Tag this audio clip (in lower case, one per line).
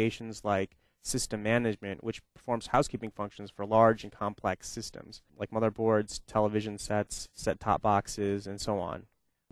speech